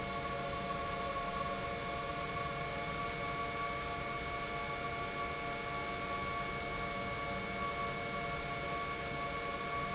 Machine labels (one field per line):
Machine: pump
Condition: normal